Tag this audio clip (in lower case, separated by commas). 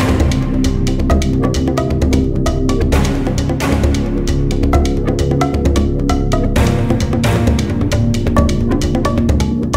music